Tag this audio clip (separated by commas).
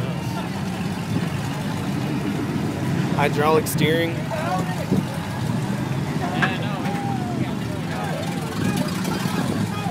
Vehicle, Speech